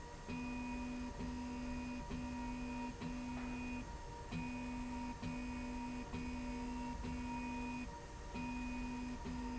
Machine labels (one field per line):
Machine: slide rail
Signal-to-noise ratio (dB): 6 dB